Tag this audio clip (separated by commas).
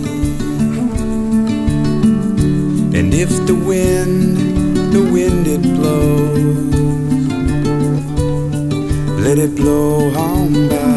Music